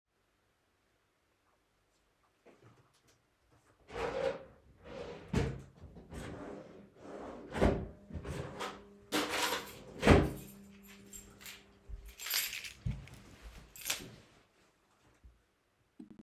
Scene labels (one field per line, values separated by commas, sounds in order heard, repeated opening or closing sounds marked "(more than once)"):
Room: living room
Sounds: wardrobe or drawer, keys